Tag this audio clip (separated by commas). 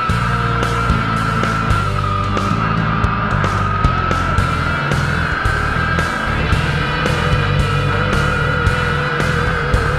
Truck, Vehicle, Music